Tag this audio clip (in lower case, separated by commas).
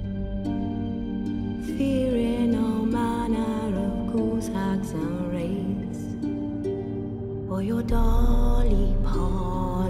lullaby, music